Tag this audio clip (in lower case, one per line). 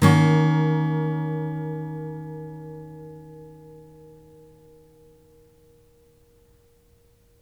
acoustic guitar
plucked string instrument
musical instrument
guitar
music
strum